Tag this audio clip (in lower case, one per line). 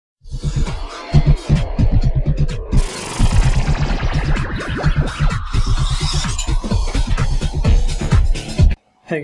music
speech
inside a small room